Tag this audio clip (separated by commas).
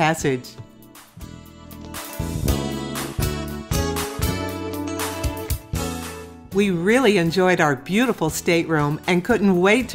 Speech, Music